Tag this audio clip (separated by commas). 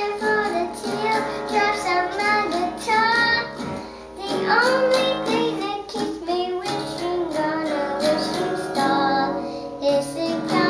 Female singing, Plucked string instrument, Guitar, Music, Musical instrument, Child singing